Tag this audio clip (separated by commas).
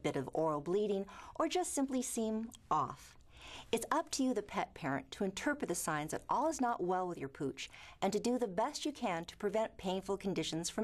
Speech